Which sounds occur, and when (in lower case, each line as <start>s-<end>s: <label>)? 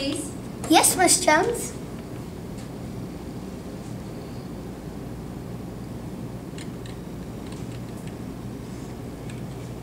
0.0s-9.8s: background noise
0.0s-0.4s: woman speaking
0.6s-1.6s: child speech